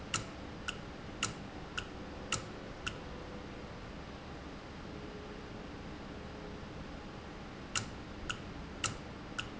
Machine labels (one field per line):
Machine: valve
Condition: normal